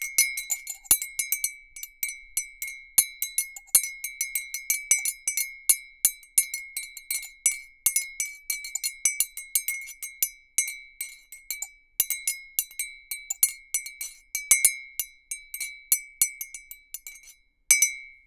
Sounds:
Glass, home sounds, Cutlery, Chink, dishes, pots and pans

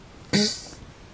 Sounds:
Fart

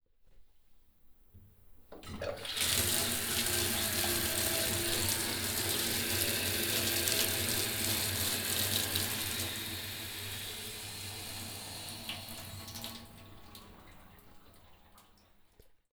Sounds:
faucet, Domestic sounds, Bathtub (filling or washing)

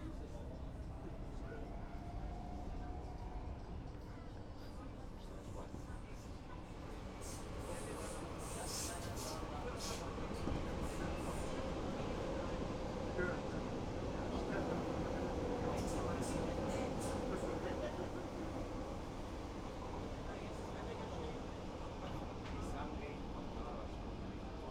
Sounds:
Vehicle

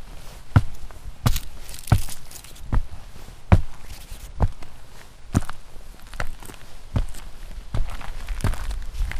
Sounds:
Walk

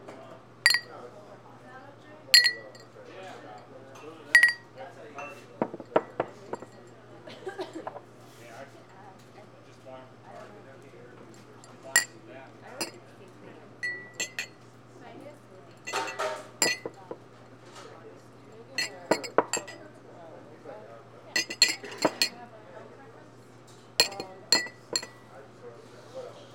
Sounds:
clink, Glass

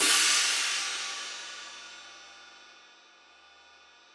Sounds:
Hi-hat, Musical instrument, Percussion, Cymbal, Music

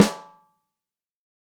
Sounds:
Music, Musical instrument, Drum, Percussion, Snare drum

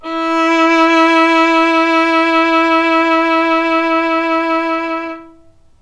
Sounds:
Music, Musical instrument, Bowed string instrument

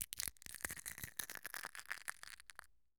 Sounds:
Crushing

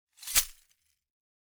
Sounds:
Glass

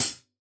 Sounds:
Hi-hat, Music, Percussion, Cymbal, Musical instrument

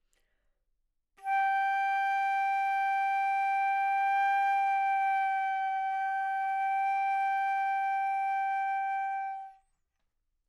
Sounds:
Music, woodwind instrument, Musical instrument

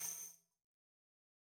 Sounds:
Percussion, Musical instrument, Music, Tambourine

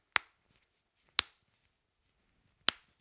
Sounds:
Crack

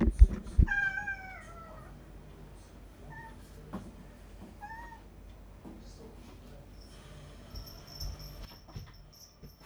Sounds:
Animal, Meow, Domestic animals, Cat

